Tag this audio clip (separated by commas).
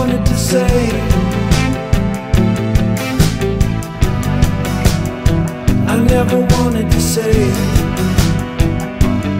Music